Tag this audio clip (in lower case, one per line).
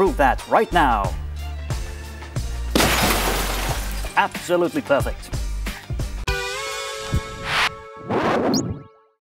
speech
music